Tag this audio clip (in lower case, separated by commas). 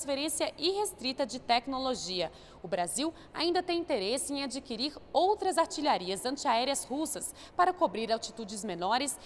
inside a small room, speech